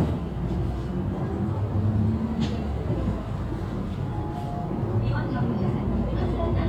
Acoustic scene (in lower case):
bus